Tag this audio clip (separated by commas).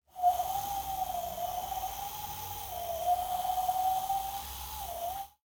Wind